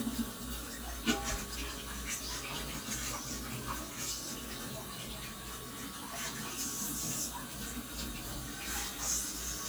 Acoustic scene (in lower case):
kitchen